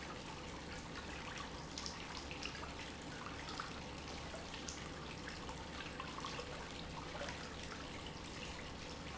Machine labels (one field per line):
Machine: pump